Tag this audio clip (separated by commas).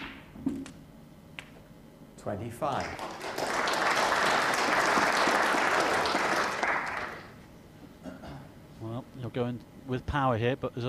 Speech